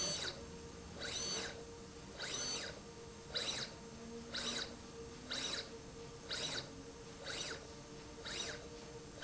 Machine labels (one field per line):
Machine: slide rail